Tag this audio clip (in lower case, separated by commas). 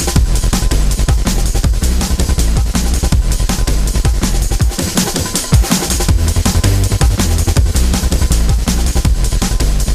music